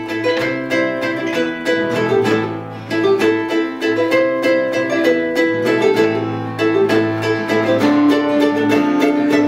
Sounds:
Guitar, Music, Musical instrument

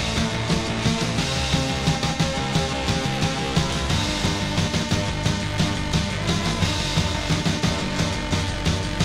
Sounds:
Music

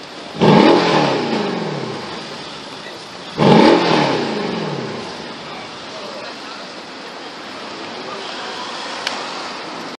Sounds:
Speech

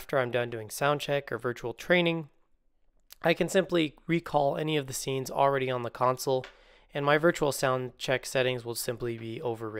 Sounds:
Speech

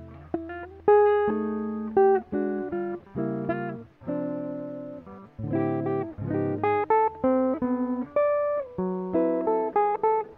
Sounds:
Electric guitar, Music, Strum, Musical instrument, Plucked string instrument, Guitar

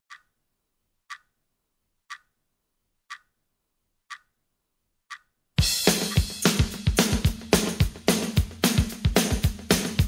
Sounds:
inside a small room, Music

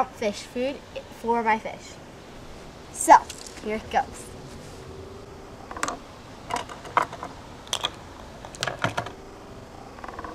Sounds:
outside, urban or man-made, Speech

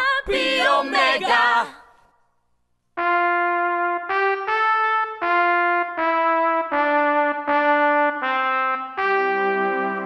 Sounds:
Brass instrument

